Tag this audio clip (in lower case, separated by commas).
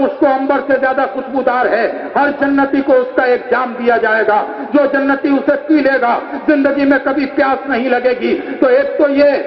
man speaking, speech, narration